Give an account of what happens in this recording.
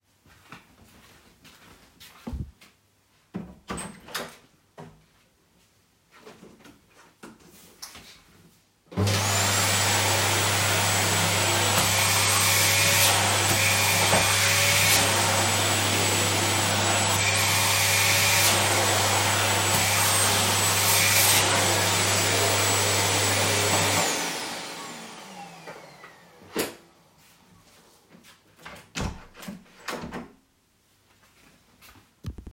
I opened the door to the room. I then turned on the vacuum cleaner and started vacuuming the floor while moving around.